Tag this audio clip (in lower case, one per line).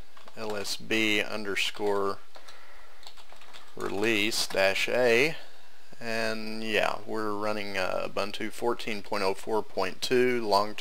speech